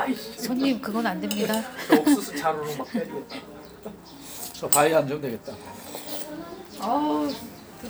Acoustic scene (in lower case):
restaurant